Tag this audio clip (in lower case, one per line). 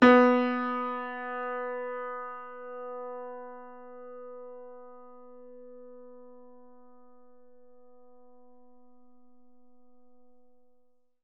music
piano
keyboard (musical)
musical instrument